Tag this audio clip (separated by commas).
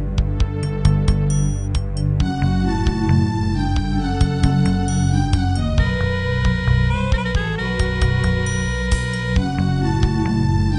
Music, Video game music